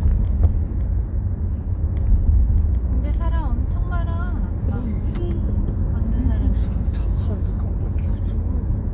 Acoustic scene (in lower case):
car